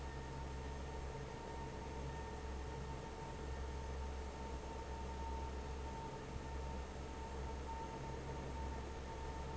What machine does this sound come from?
fan